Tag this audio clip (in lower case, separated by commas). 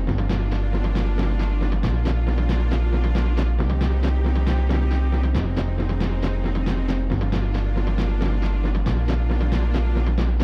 music